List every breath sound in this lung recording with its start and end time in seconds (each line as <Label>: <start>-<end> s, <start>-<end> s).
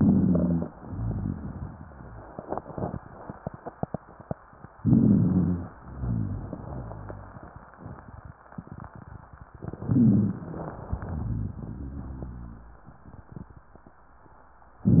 Inhalation: 4.81-5.72 s, 9.54-10.73 s
Exhalation: 0.70-2.33 s, 5.80-7.73 s, 10.84-12.87 s
Rhonchi: 0.83-2.37 s, 4.83-5.71 s, 5.79-7.37 s, 9.79-10.34 s, 10.90-12.81 s
Crackles: 9.56-10.71 s